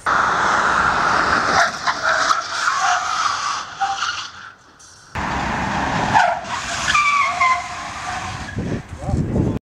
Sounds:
vehicle, speech

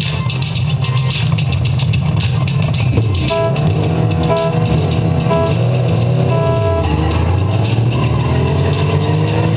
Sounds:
car, music, motor vehicle (road)

